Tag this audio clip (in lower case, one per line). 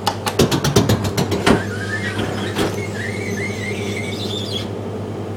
squeak